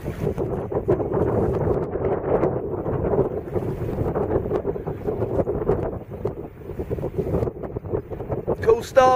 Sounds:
wind noise (microphone), wind, wind noise

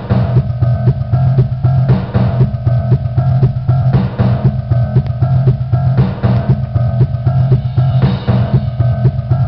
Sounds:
drum, music, drum machine

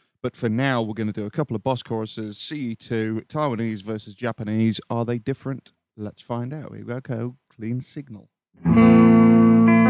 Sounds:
bass guitar, music, distortion, electric guitar, speech

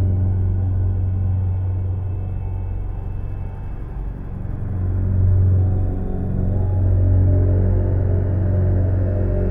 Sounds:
music, electronic music

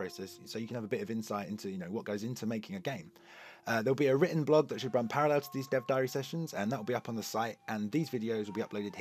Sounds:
speech, music

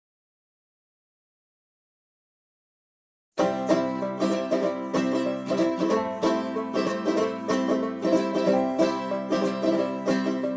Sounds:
banjo, music, mandolin

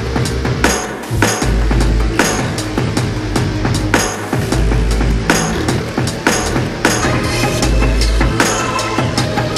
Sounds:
music

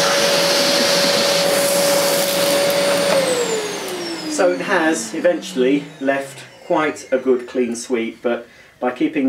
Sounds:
vacuum cleaner cleaning floors

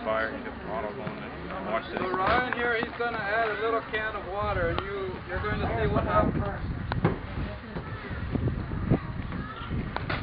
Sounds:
wind noise (microphone), fire, wind

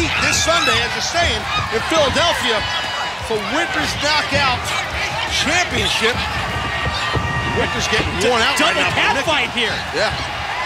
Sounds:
speech, music

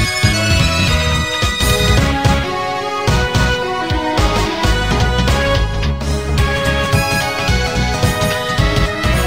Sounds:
background music, video game music, music

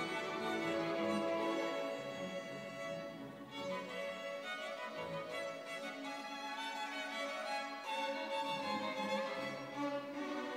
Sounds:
music, orchestra

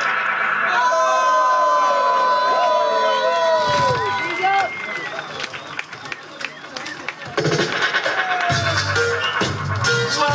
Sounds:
music, speech

